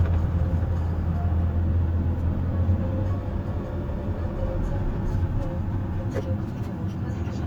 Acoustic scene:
car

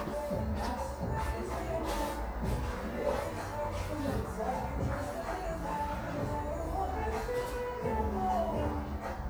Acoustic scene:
cafe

